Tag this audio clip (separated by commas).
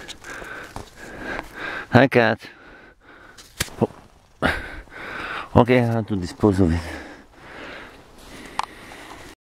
Speech